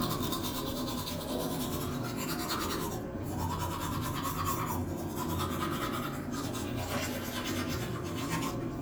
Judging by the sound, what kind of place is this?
restroom